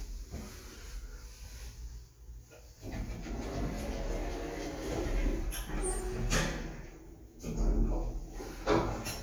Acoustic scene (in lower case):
elevator